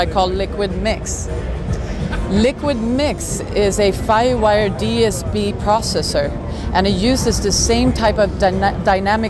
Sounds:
speech
music

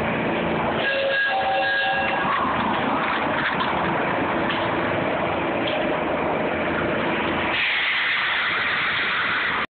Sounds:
vehicle

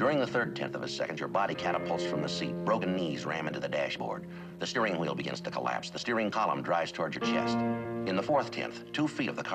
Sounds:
music
male speech
narration
speech

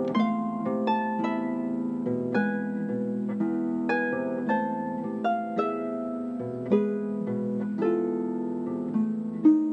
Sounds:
playing harp
bowed string instrument
harp

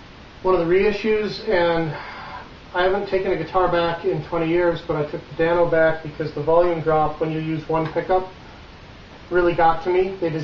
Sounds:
speech

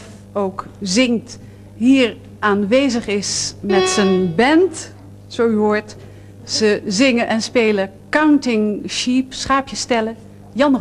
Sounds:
speech

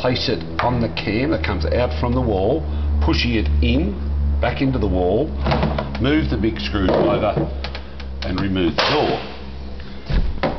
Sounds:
speech

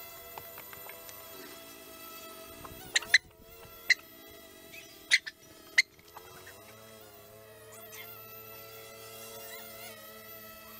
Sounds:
outside, rural or natural

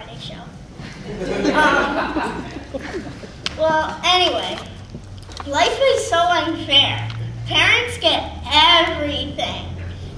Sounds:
kid speaking
speech

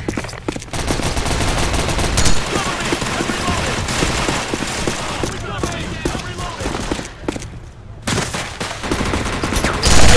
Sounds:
speech

